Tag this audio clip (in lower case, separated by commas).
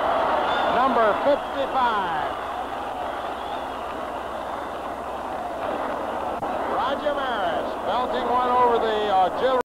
speech